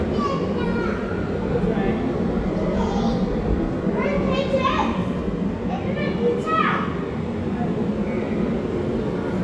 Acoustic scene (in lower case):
subway station